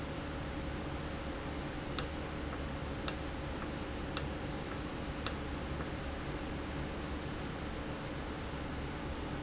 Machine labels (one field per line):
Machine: valve